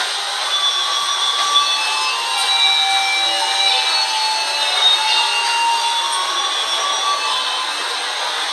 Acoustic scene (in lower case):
subway station